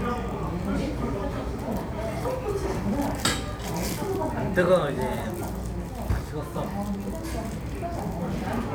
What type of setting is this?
restaurant